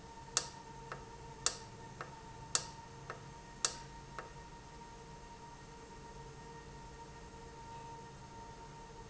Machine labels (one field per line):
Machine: valve